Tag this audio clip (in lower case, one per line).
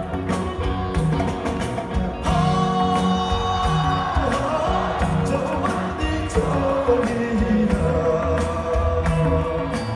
music